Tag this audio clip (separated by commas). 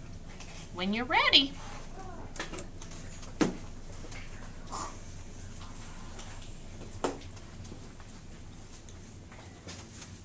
Speech